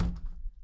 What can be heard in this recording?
window closing